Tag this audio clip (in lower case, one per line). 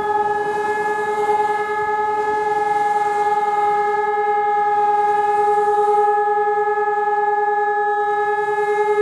civil defense siren